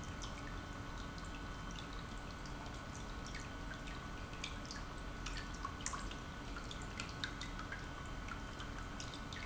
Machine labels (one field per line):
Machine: pump